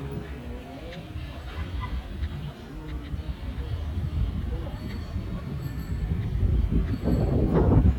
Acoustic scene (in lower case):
residential area